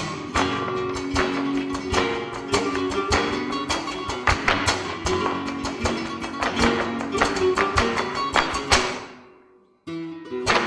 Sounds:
Music, Guitar, Plucked string instrument, Musical instrument

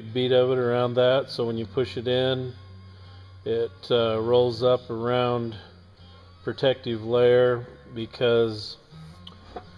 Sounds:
Speech, Music

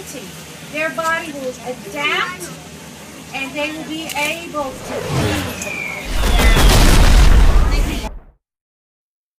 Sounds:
Speech, Explosion

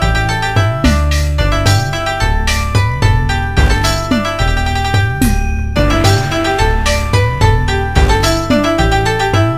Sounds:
Happy music, Music

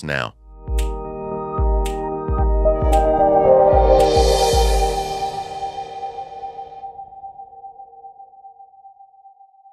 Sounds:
Speech, Music

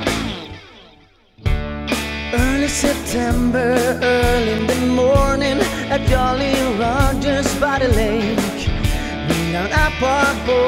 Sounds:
Rhythm and blues, Music

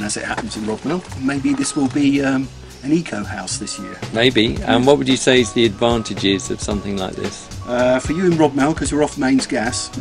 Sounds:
Music, Speech

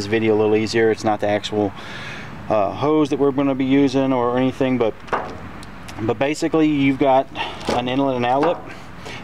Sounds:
inside a small room, Speech

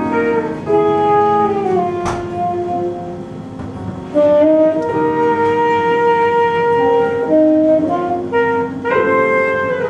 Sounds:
Jazz, Music, Saxophone

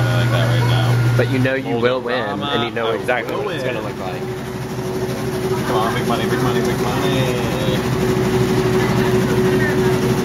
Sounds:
inside a large room or hall, Speech

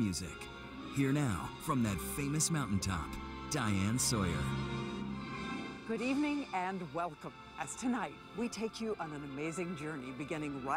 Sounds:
Music, Tender music, Speech

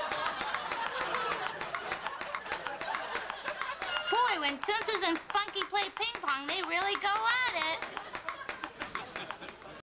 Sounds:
Speech

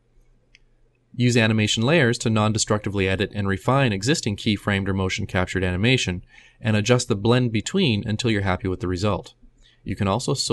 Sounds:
Speech

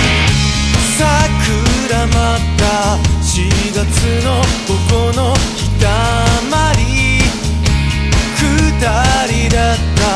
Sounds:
Music

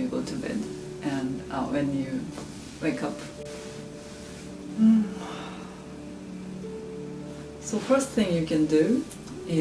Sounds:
Speech, Music

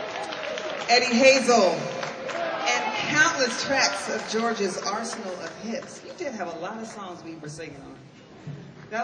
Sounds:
Speech

